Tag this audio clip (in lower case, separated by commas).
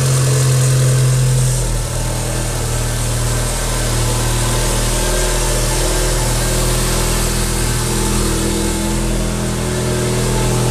engine, vehicle, motor vehicle (road), car, medium engine (mid frequency)